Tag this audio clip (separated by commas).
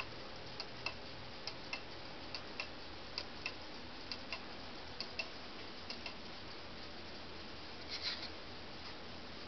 Tick-tock